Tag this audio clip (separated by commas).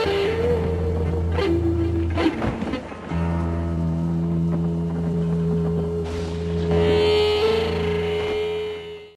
Music